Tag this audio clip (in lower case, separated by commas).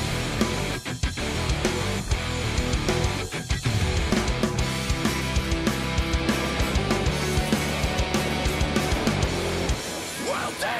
music